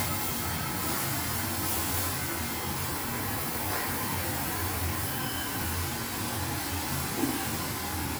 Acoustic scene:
restaurant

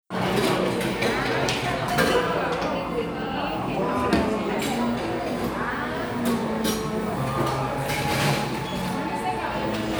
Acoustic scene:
crowded indoor space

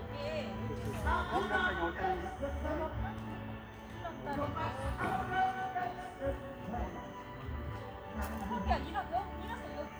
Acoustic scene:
park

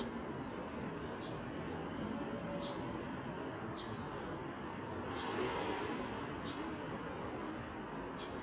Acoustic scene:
residential area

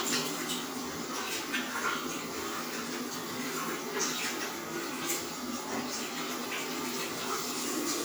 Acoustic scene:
restroom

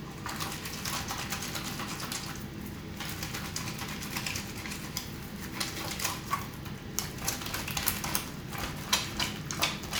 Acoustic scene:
restroom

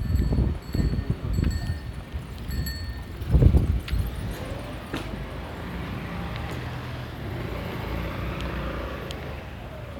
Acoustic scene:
residential area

